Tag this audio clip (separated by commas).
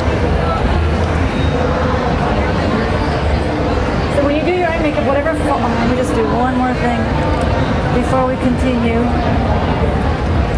inside a public space, Speech